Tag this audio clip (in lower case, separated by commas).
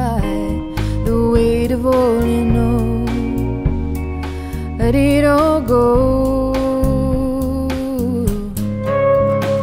music, singing